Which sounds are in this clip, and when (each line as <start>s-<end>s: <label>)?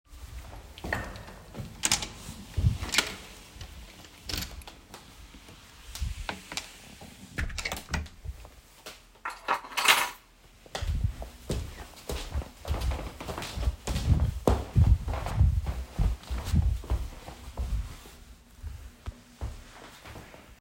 0.6s-1.4s: footsteps
1.7s-3.3s: door
4.3s-5.0s: keys
7.2s-8.4s: door
9.1s-10.3s: keys
10.6s-19.8s: footsteps